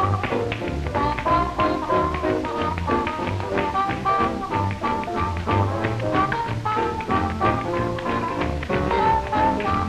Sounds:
Music, Tap

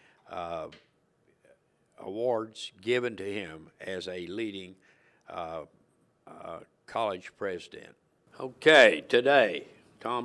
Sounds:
Speech

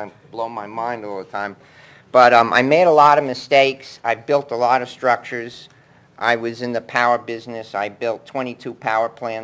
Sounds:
Speech

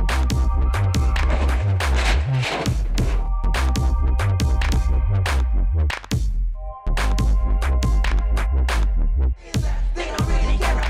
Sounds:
Music, Electronic music, Dubstep

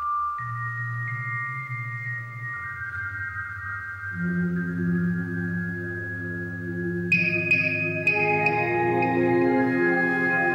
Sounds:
Music, Musical instrument

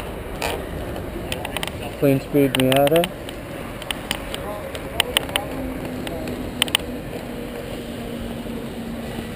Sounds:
Speech

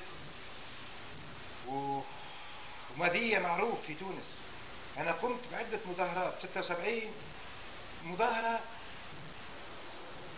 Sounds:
Speech

